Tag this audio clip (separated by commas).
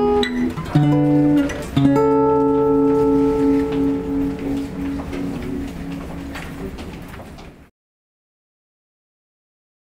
Guitar, Strum, Music, Acoustic guitar, Plucked string instrument, Musical instrument